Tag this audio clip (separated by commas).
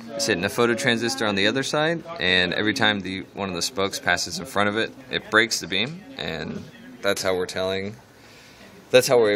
Speech